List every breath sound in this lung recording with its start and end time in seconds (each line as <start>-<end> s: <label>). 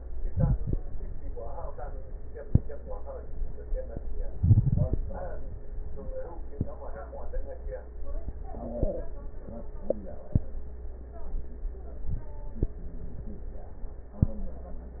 0.15-0.84 s: inhalation
4.33-5.02 s: inhalation
4.33-5.02 s: crackles